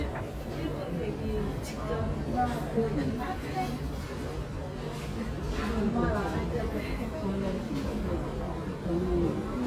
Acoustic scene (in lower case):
subway station